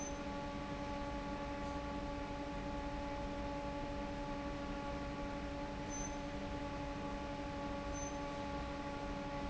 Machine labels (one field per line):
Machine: fan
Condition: normal